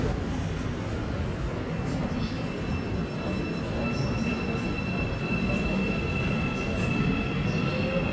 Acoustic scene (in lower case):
subway station